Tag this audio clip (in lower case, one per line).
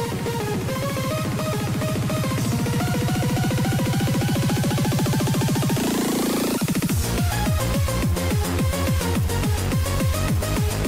music